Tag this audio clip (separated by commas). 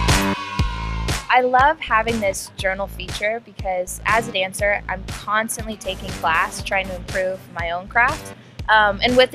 Speech, Music